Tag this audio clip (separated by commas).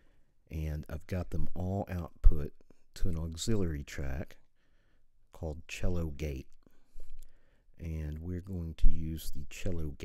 Speech